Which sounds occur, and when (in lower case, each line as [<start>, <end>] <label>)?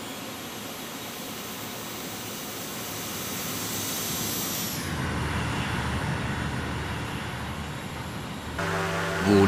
[0.00, 9.45] aircraft